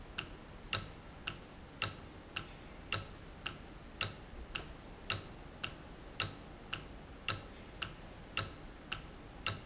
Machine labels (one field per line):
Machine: valve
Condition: normal